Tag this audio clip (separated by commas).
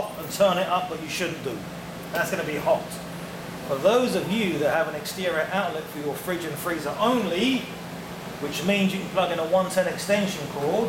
Speech